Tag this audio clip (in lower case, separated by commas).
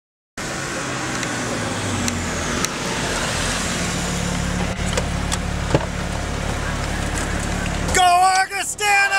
speech, outside, urban or man-made